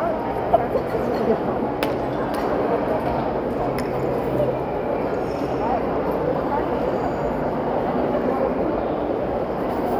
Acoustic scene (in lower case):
crowded indoor space